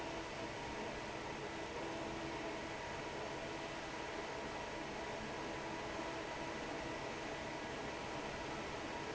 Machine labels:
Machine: fan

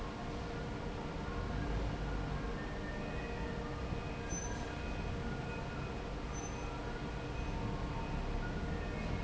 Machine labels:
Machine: fan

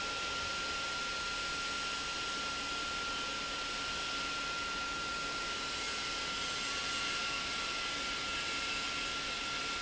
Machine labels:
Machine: pump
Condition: abnormal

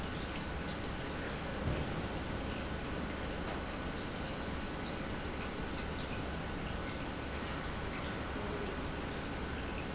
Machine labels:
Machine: pump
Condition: normal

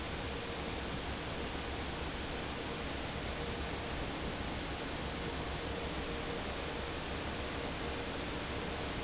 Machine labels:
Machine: fan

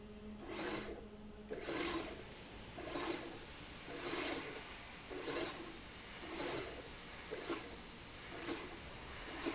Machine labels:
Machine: slide rail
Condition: abnormal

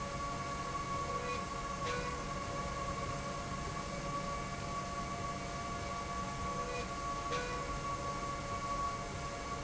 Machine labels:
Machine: slide rail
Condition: normal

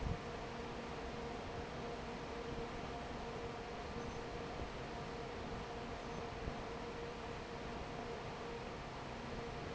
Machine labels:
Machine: fan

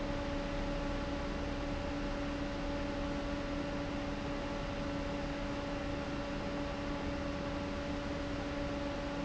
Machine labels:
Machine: fan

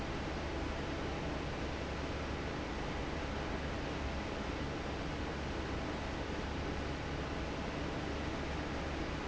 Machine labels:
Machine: fan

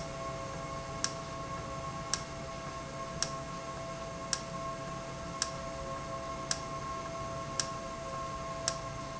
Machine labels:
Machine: valve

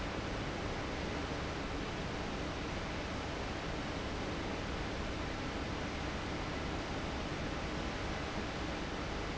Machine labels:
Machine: fan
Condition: abnormal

